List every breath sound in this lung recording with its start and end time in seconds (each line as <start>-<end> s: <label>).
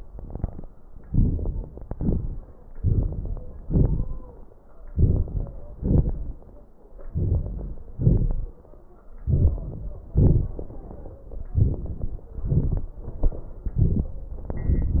1.05-1.87 s: inhalation
1.05-1.87 s: crackles
1.88-2.72 s: exhalation
1.88-2.72 s: crackles
2.75-3.60 s: crackles
2.75-3.63 s: inhalation
3.63-4.76 s: exhalation
3.63-4.76 s: crackles
4.77-5.78 s: inhalation
4.77-5.78 s: crackles
5.79-6.99 s: exhalation
6.97-7.95 s: inhalation
6.97-7.95 s: crackles
7.94-9.07 s: exhalation
7.96-9.07 s: crackles
9.08-10.10 s: inhalation
9.08-10.10 s: crackles
10.10-11.50 s: exhalation
10.10-11.50 s: crackles
11.51-12.42 s: inhalation
11.51-12.42 s: crackles
12.43-13.66 s: exhalation
12.44-13.64 s: crackles
13.66-14.46 s: inhalation
13.66-14.46 s: crackles
14.48-15.00 s: exhalation
14.48-15.00 s: crackles